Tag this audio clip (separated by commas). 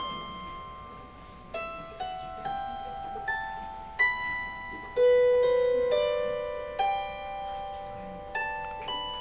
playing zither